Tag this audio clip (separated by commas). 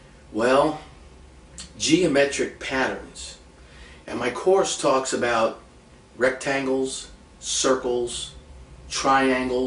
Speech